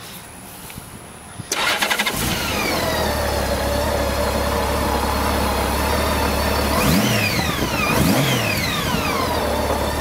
A man starts a motorcycle